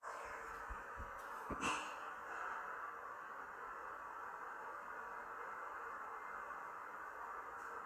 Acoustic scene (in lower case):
elevator